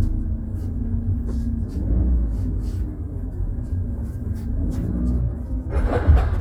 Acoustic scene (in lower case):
car